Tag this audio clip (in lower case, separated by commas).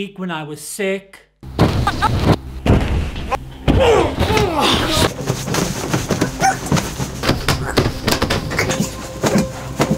music, speech, inside a small room